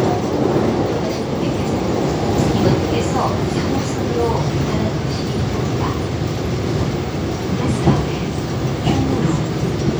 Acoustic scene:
subway train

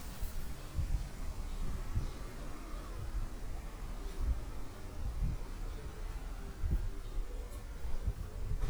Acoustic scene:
park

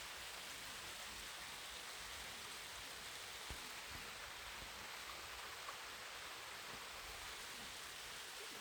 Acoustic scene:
park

